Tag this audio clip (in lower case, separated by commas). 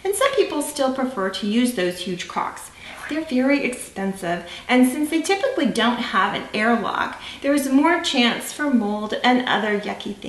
speech